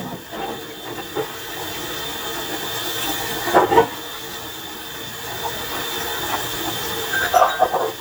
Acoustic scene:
kitchen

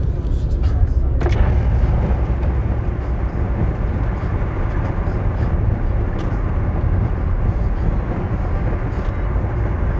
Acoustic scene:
car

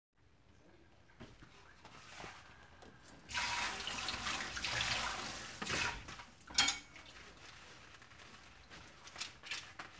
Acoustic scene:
kitchen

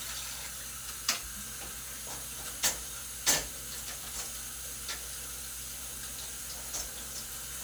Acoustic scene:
kitchen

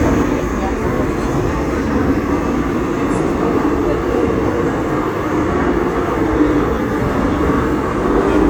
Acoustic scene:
subway train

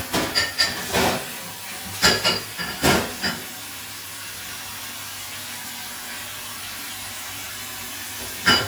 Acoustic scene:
kitchen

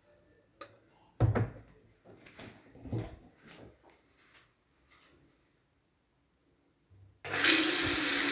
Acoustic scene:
restroom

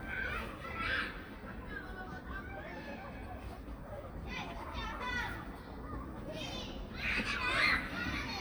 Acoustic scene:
park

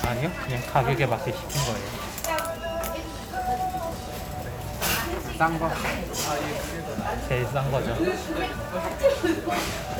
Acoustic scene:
cafe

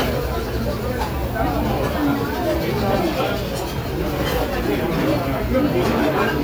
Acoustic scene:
restaurant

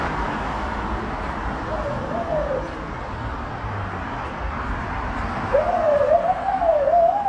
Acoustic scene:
street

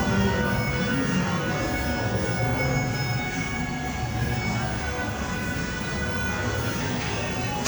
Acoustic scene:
cafe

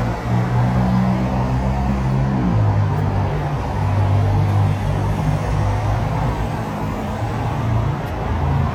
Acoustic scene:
street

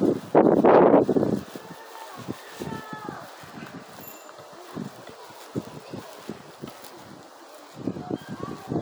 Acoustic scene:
residential area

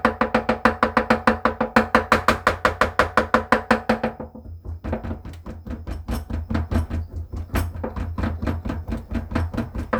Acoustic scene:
kitchen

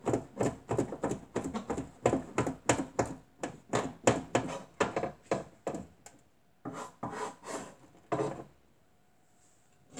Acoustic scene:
kitchen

